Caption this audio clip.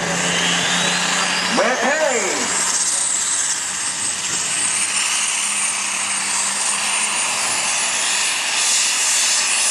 A man speaking with loud engine going off